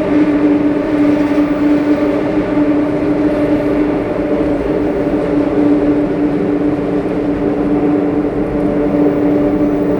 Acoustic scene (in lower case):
subway train